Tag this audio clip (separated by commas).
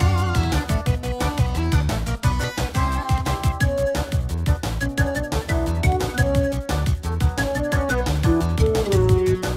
playing synthesizer